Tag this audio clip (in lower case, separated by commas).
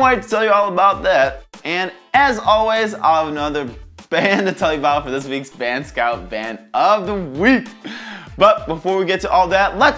music, speech